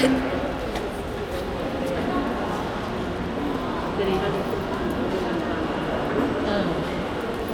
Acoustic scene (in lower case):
crowded indoor space